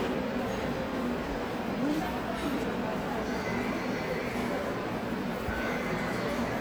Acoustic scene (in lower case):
subway station